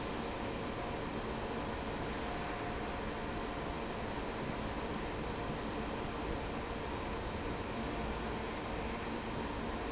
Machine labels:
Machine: fan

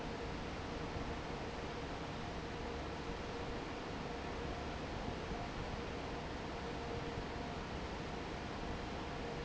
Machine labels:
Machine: fan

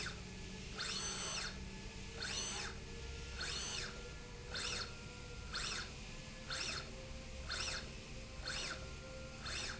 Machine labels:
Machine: slide rail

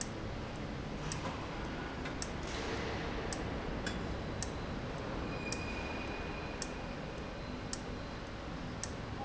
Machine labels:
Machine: valve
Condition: abnormal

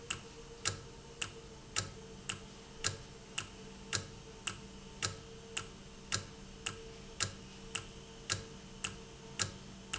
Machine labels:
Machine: valve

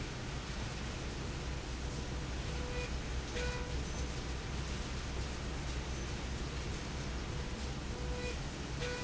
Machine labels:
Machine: slide rail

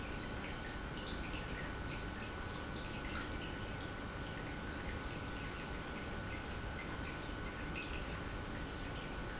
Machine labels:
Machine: pump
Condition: normal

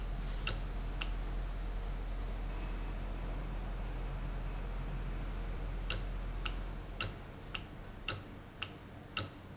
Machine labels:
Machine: valve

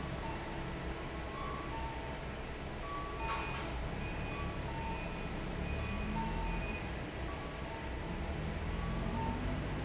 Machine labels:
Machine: fan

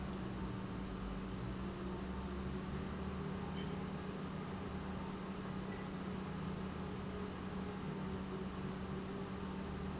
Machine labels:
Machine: pump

